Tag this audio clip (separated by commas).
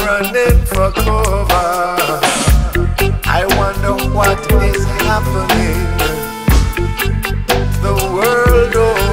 Music